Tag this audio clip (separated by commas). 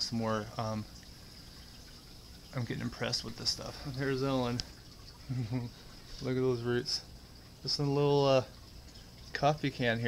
Speech